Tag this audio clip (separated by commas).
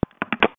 Alarm, Telephone